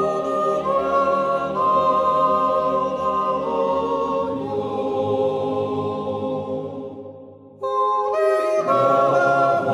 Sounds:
yodelling

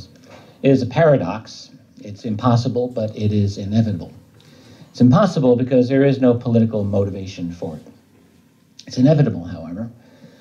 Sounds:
Male speech, Narration, Speech

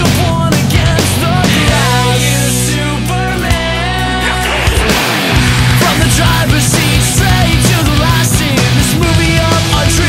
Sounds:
Music

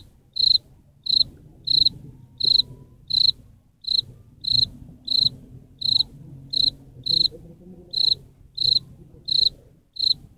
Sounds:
cricket chirping

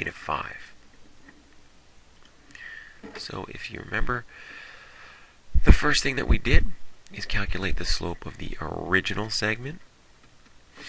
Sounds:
Speech

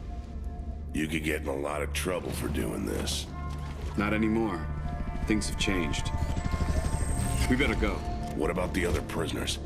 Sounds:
Speech, Music

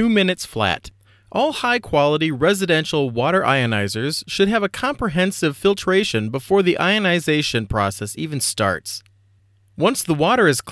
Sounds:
Speech

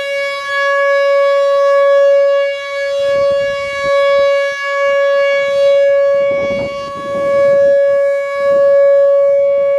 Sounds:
Civil defense siren, Siren

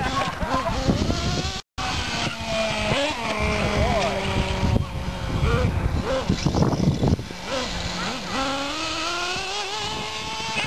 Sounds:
Car, Speech, Motor vehicle (road)

